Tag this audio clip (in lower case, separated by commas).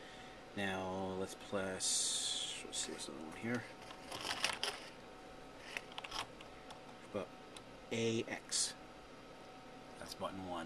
speech